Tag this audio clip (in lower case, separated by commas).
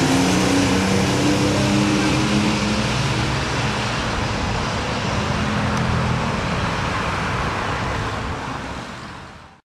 truck, vehicle